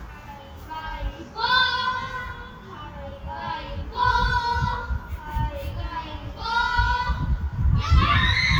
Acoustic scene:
park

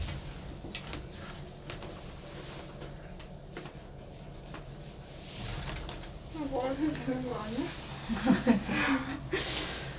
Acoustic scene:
elevator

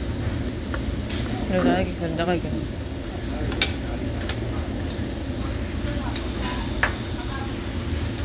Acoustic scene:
restaurant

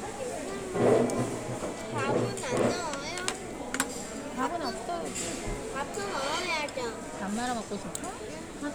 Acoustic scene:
restaurant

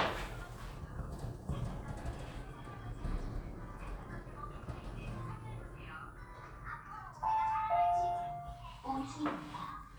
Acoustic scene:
elevator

